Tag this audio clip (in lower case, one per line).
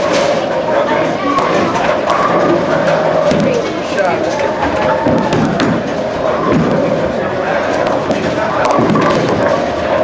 speech